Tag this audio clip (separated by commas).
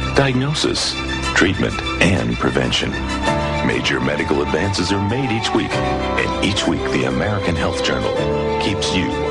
Music, Speech